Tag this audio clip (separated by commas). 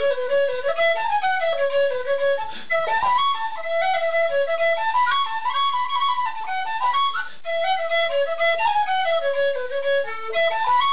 Flute, Music, playing flute